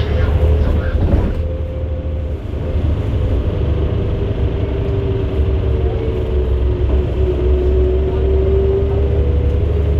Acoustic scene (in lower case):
bus